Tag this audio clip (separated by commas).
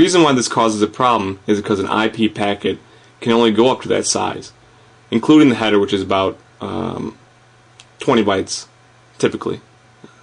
Speech